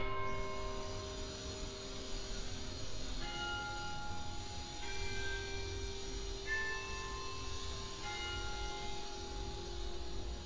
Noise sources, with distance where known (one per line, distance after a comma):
music from an unclear source